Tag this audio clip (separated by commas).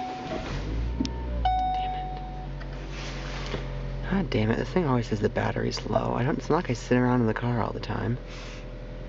Speech